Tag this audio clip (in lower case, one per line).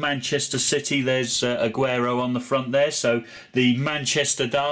speech